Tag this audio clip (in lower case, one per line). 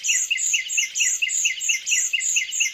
human voice
laughter